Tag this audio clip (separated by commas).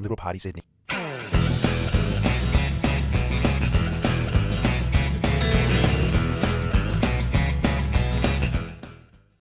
Speech, Music